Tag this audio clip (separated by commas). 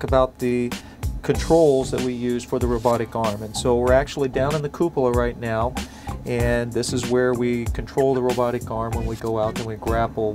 Speech, Music